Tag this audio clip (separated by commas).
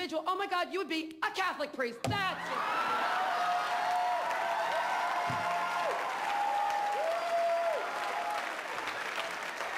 Applause, Speech